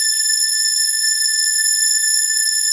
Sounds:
musical instrument, music, organ, keyboard (musical)

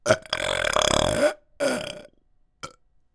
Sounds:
burping

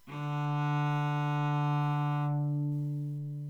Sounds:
music, bowed string instrument, musical instrument

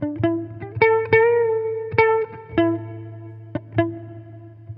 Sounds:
electric guitar, guitar, musical instrument, music, plucked string instrument

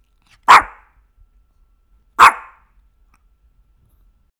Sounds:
animal, dog, pets

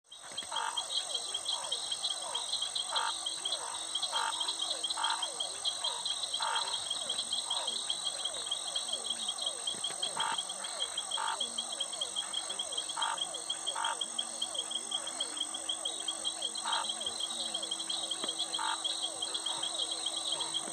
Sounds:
cricket, insect, animal, frog, wild animals

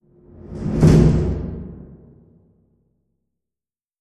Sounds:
home sounds, slam, door

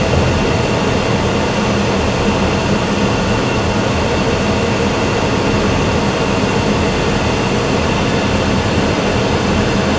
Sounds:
aircraft, fixed-wing aircraft, vehicle

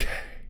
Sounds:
whispering, human voice

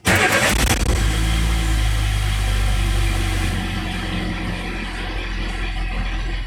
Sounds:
vehicle, motor vehicle (road), engine, engine starting, car

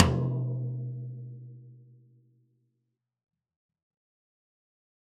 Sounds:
music, musical instrument, percussion, drum

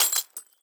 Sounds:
shatter, glass

